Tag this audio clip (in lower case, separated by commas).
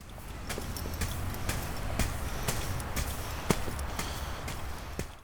ocean, water, waves